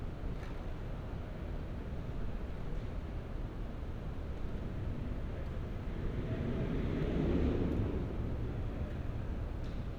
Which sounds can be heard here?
engine of unclear size